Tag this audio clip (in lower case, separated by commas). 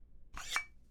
chink, glass